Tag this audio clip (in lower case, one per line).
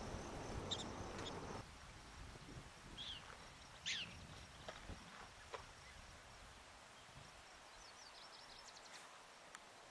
animal